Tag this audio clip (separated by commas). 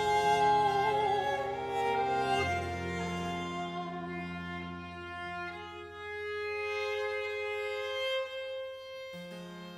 Piano, Keyboard (musical)